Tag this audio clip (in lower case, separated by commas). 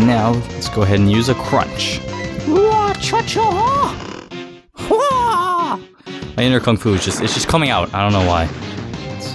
music, speech